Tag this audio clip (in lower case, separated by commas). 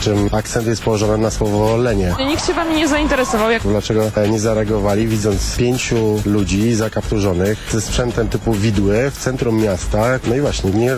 music, speech